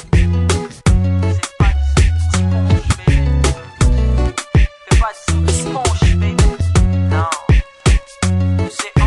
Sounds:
Music

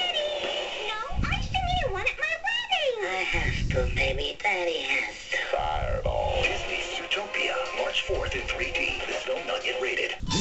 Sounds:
Television, Music, Speech

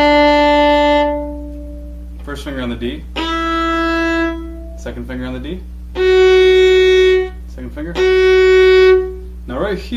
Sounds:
fiddle, Music, Speech, Musical instrument

